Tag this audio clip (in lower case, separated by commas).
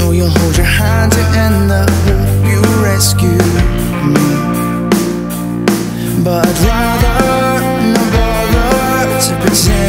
music